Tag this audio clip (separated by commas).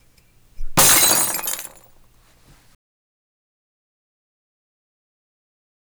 Glass, Shatter